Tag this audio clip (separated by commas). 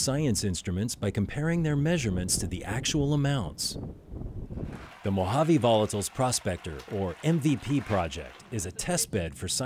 Speech